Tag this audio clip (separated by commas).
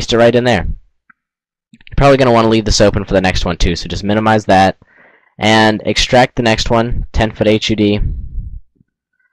Speech, inside a small room